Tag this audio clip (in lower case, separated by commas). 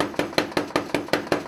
tools